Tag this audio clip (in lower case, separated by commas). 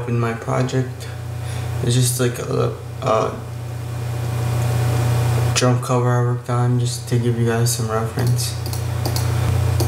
dishes, pots and pans, speech